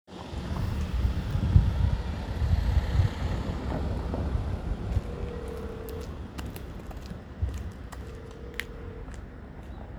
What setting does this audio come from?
residential area